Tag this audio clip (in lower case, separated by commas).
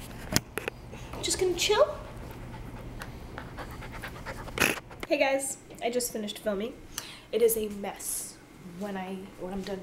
pets, animal, speech